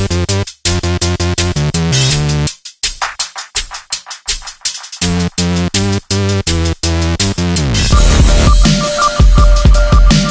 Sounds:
music

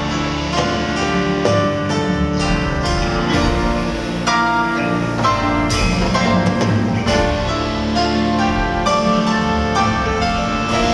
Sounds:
music

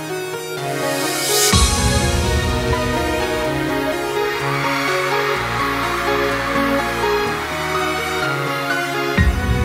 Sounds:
theme music, music

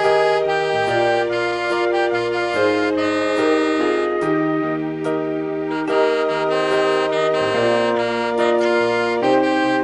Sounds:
inside a small room, playing saxophone, music, saxophone

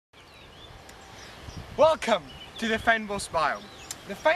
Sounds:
speech

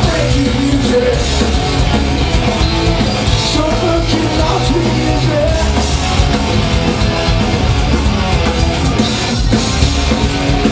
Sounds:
exciting music, music

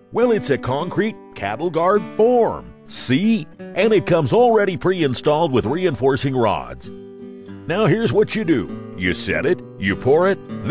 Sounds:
music, speech

